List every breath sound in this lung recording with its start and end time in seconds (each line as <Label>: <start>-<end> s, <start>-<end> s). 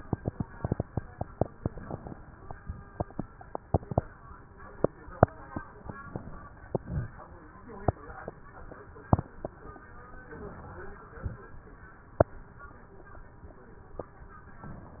Inhalation: 1.57-2.33 s, 6.03-6.78 s, 10.28-11.09 s
Exhalation: 6.79-7.60 s
Crackles: 1.57-2.33 s, 6.03-6.78 s, 6.79-7.60 s